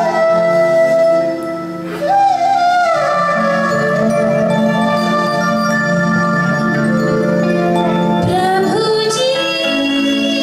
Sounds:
music, singing

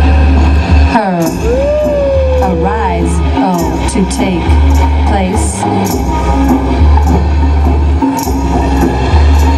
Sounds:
music, speech

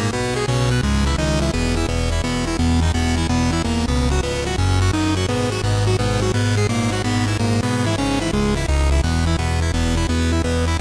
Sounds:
music

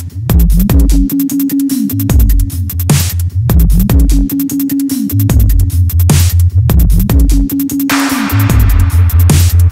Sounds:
dubstep, music

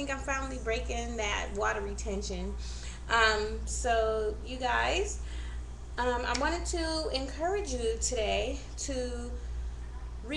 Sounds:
speech

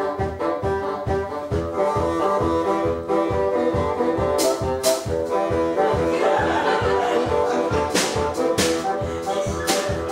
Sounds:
playing bassoon

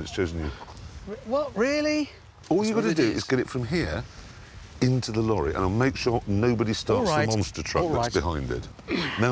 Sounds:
speech

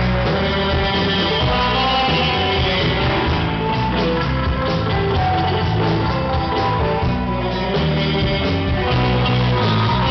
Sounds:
musical instrument, music, electric guitar, guitar

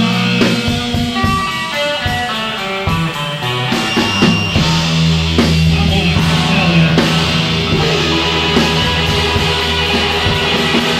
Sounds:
music, psychedelic rock

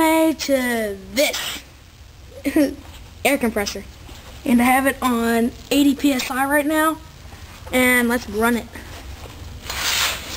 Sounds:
speech

